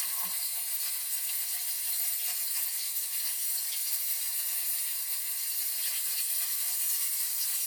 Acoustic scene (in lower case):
kitchen